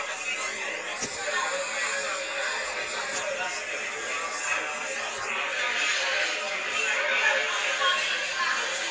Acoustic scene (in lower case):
crowded indoor space